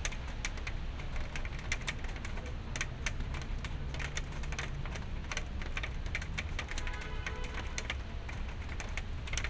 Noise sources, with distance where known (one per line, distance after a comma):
unidentified alert signal